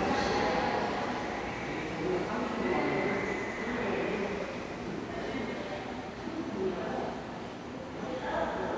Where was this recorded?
in a subway station